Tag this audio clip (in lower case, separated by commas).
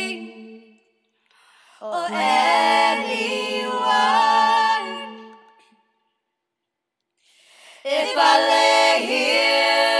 choir, female singing